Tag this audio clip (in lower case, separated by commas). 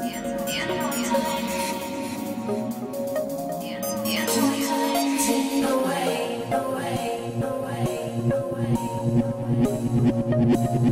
dubstep, music, electronic music